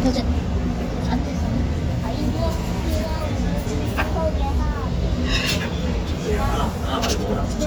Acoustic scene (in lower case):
restaurant